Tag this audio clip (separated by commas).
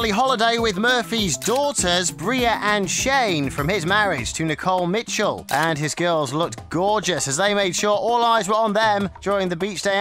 Music, Speech